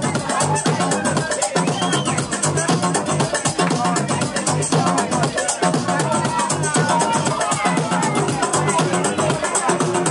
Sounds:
Speech, Music

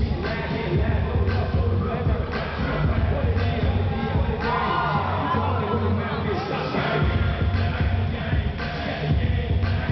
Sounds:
Music

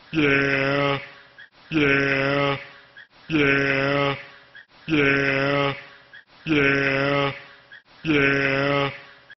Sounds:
sheep bleating, Bleat

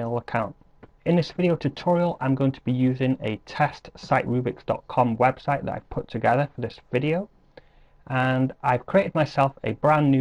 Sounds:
Speech

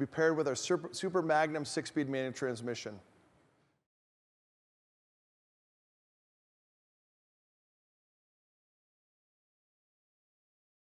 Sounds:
Speech

